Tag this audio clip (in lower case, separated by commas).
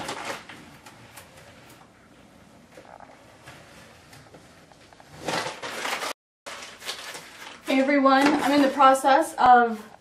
inside a small room, speech